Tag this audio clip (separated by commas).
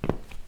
Walk